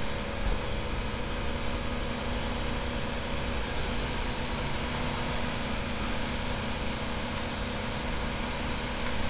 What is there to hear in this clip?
large-sounding engine